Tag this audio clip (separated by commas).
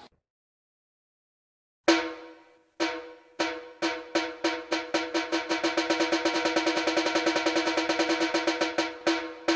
Drum roll